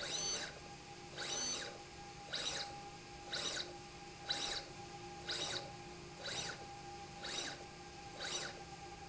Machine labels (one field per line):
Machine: slide rail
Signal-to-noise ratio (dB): 6 dB